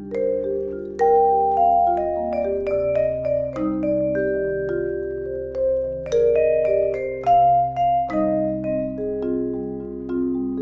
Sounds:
playing vibraphone

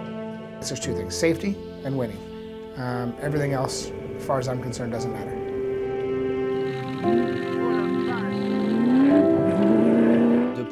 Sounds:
speech, music

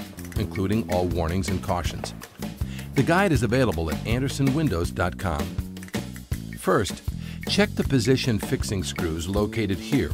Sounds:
music, speech

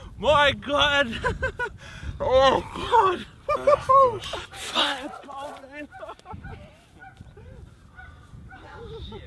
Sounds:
outside, urban or man-made, speech

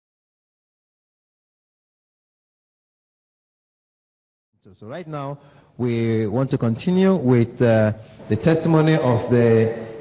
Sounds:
speech

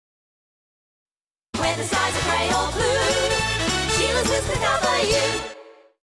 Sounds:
music

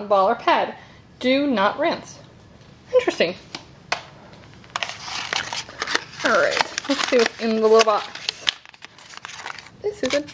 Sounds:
inside a small room, speech

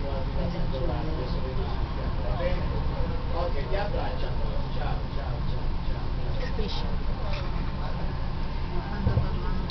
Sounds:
speech, vehicle

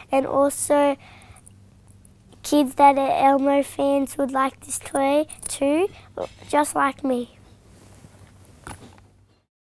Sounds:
speech

